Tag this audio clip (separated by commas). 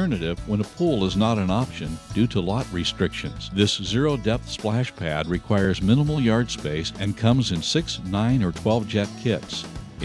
Speech, Music